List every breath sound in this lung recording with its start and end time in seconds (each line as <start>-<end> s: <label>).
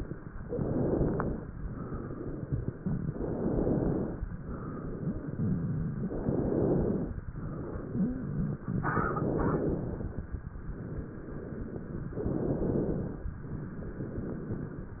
0.40-1.43 s: inhalation
1.61-3.04 s: exhalation
3.11-4.14 s: inhalation
4.36-6.05 s: exhalation
6.15-7.17 s: inhalation
7.32-8.71 s: exhalation
8.84-10.23 s: inhalation
10.61-12.14 s: exhalation
12.24-13.26 s: inhalation
13.49-15.00 s: exhalation